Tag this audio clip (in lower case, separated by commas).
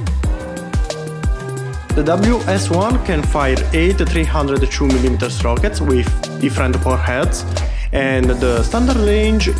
firing cannon